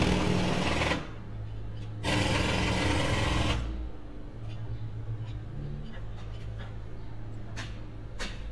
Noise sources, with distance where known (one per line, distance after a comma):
jackhammer, near